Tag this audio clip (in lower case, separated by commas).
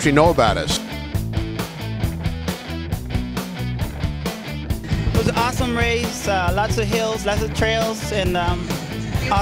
music, speech